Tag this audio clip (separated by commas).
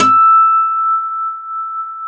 Guitar, Plucked string instrument, Music, Acoustic guitar, Musical instrument